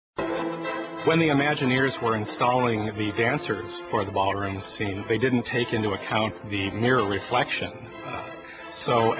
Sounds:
Speech

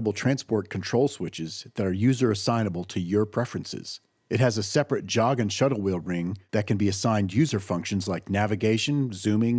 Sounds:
Speech

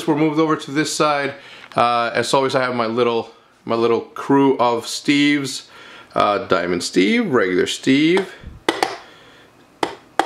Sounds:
Speech

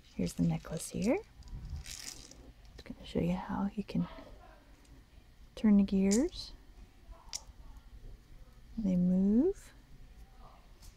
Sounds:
inside a small room, Speech

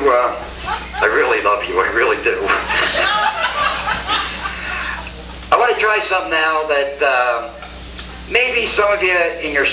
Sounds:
Speech

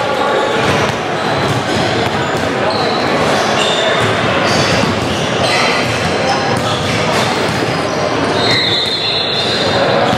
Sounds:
basketball bounce

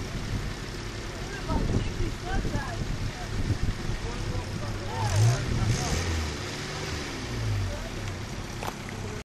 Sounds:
Speech

